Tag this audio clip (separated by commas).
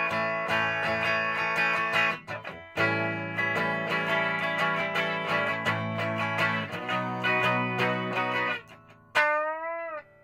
Musical instrument, Music, Guitar, Strum, Plucked string instrument